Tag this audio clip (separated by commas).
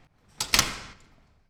home sounds, Door